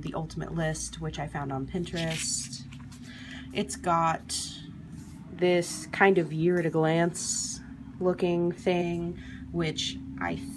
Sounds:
speech

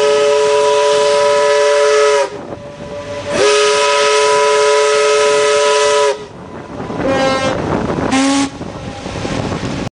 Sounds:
steam whistle
steam

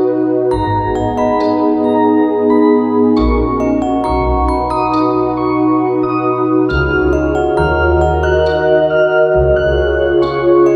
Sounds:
mallet percussion
xylophone

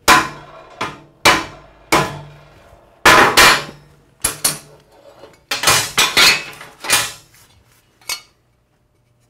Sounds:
inside a small room

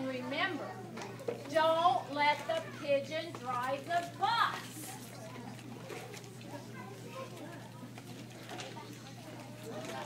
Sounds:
speech

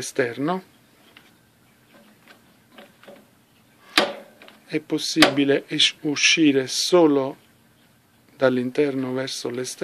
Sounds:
speech

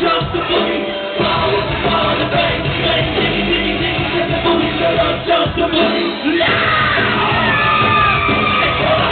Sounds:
inside a large room or hall
music
yell

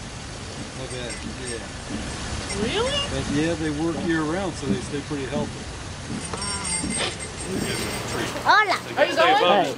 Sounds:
speech

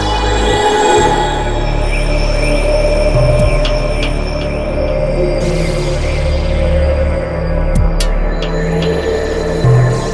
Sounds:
trance music
music

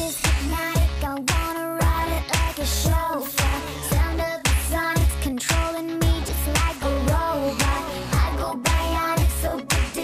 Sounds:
music

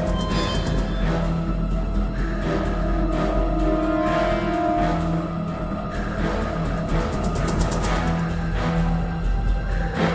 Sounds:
music

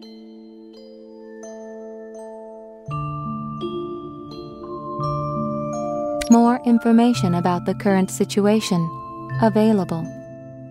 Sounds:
vibraphone

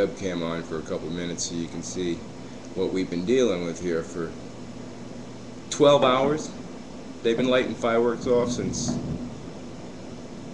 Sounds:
speech

